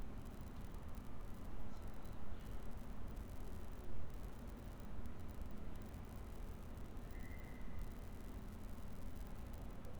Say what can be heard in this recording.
background noise